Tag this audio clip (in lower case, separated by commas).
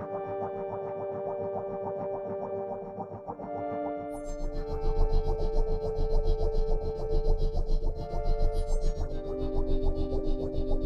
synthesizer, music